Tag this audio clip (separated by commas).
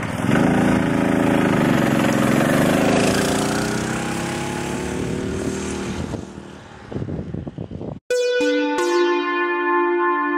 Motorcycle, Vehicle